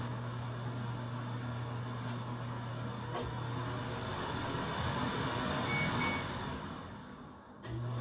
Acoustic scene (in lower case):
kitchen